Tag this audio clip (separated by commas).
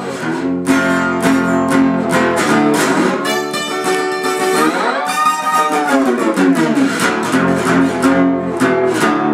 playing steel guitar